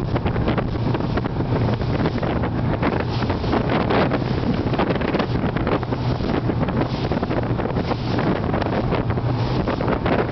Heavy wind blowing